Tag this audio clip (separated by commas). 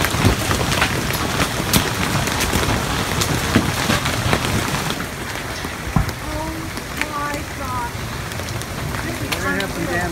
hail